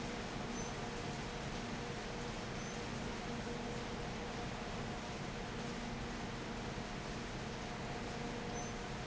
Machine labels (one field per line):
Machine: fan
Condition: abnormal